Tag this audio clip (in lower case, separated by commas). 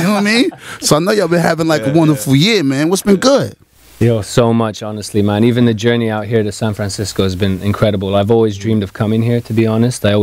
speech